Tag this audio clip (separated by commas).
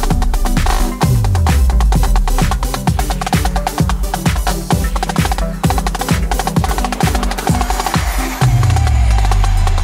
playing snare drum